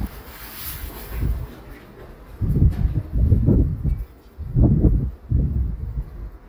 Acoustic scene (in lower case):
residential area